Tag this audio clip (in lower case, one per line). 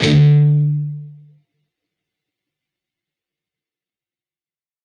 guitar
musical instrument
plucked string instrument
music